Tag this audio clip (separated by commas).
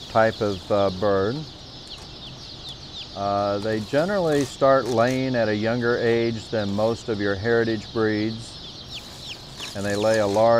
Speech